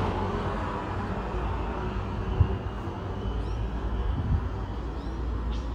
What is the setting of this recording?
residential area